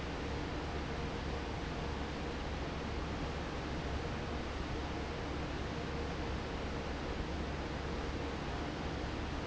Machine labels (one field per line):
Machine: fan